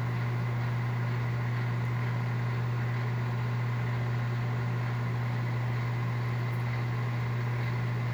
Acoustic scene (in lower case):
kitchen